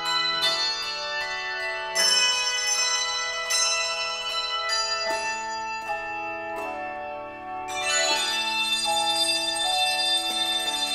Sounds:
inside a large room or hall
music

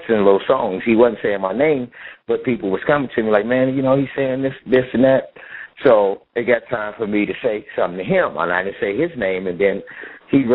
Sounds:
speech

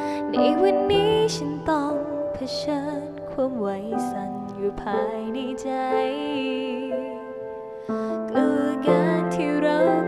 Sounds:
music

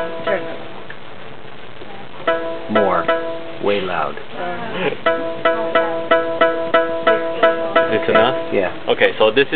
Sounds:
sampler
music
speech

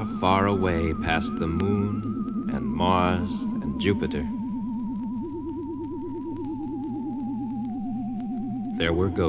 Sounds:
rustle
speech

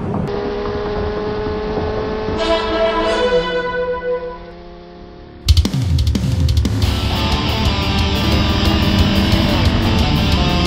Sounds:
wind instrument

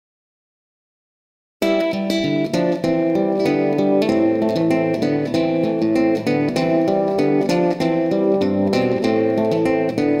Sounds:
music
plucked string instrument
guitar

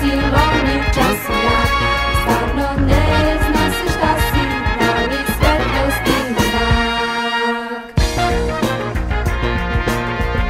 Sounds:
swing music

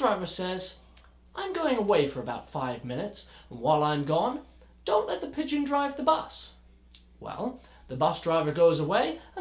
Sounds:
speech

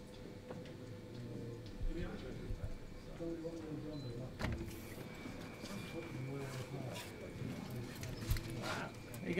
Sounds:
speech

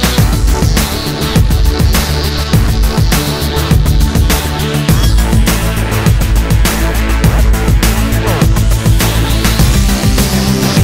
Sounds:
music

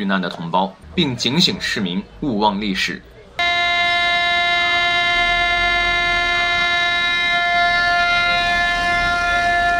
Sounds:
civil defense siren

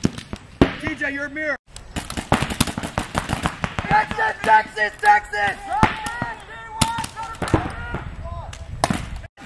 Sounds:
speech

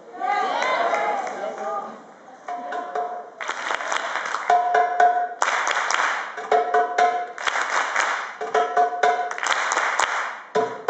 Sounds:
speech
wood block
music

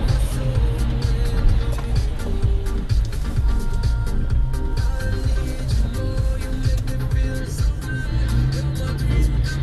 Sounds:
music
vehicle
truck

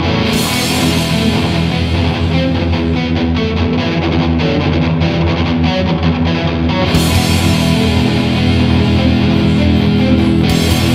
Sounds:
music
heavy metal

